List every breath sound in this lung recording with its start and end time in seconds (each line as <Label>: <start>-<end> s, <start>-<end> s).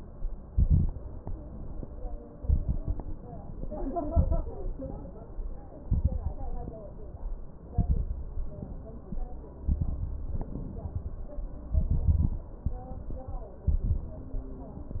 Inhalation: 0.47-1.19 s, 2.37-3.10 s, 3.88-4.60 s, 5.87-6.59 s, 7.75-8.55 s, 9.67-10.37 s, 11.76-12.46 s, 13.68-14.38 s
Exhalation: 1.20-1.84 s, 4.75-5.39 s, 6.61-7.26 s, 8.57-9.21 s, 10.39-11.29 s, 12.67-13.38 s
Crackles: 0.47-1.19 s, 2.37-3.10 s, 3.88-4.60 s, 5.87-6.59 s, 7.75-8.55 s, 9.67-10.37 s, 11.76-12.46 s, 13.68-14.38 s